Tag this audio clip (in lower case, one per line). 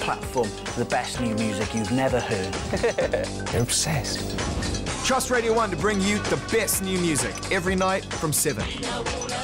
music
speech